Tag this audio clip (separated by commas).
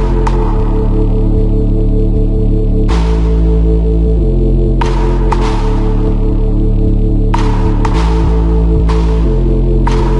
Electronica